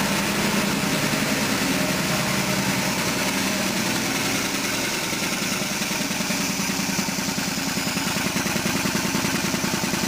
Engines revving at different speeds